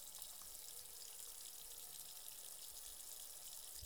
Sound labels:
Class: water tap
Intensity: medium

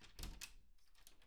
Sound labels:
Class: door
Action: opening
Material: wooden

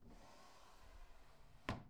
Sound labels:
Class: drawer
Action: closing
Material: wooden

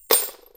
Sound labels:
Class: object falling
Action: being thrown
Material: metal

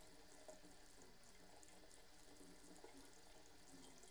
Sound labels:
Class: water tap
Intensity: low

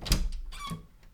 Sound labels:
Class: door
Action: opening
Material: wooden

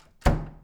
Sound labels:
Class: door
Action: closing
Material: wooden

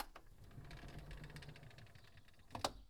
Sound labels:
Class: window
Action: opening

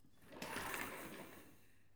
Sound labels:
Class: furniture moving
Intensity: high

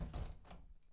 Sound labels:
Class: window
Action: closing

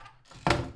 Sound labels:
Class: cupboard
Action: closing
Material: wooden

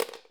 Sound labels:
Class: object falling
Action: being thrown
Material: plastic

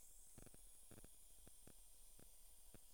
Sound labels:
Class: water tap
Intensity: low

